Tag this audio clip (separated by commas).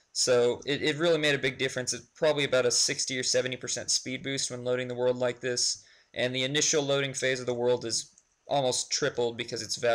Speech